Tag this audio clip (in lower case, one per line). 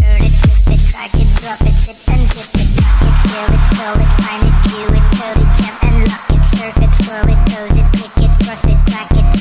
music
electronic dance music